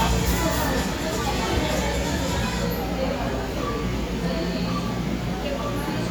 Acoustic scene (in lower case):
cafe